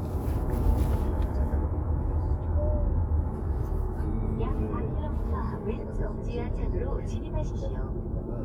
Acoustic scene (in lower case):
car